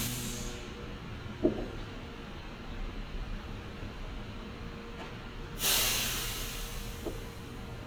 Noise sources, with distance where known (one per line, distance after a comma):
large-sounding engine, near